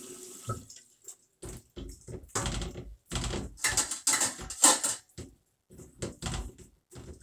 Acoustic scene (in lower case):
kitchen